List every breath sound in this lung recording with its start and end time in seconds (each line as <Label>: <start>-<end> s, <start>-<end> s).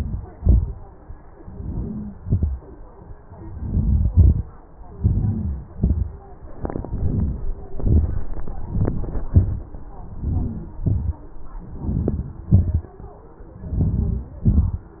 Inhalation: 1.54-2.03 s, 3.63-4.11 s, 5.02-5.48 s, 6.95-7.46 s, 8.72-9.23 s, 10.25-10.67 s, 11.87-12.40 s, 13.82-14.34 s
Exhalation: 2.23-2.58 s, 4.18-4.46 s, 5.80-6.15 s, 7.80-8.25 s, 9.34-9.76 s, 10.87-11.24 s, 12.53-12.91 s, 14.49-14.91 s